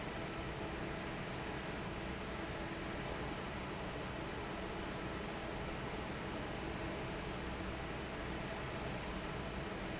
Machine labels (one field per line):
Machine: fan